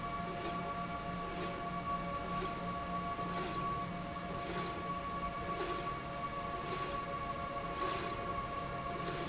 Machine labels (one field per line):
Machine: slide rail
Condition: normal